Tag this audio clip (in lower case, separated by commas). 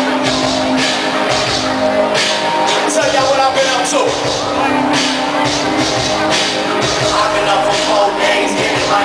rhythm and blues, music, speech